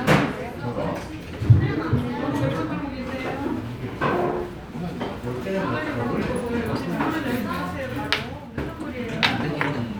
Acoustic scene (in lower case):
restaurant